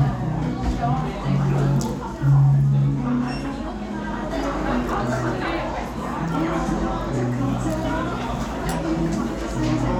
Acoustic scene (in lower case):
crowded indoor space